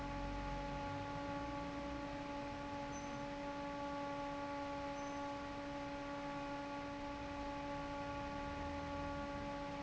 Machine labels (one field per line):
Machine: fan